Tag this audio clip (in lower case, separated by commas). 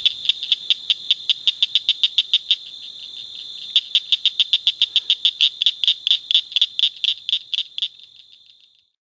animal